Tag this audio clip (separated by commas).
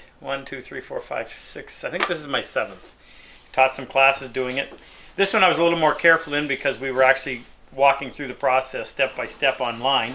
Speech